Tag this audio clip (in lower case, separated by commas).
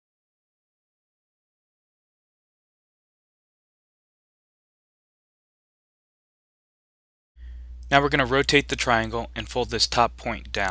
speech